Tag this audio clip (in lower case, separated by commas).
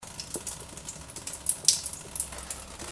bathtub (filling or washing), home sounds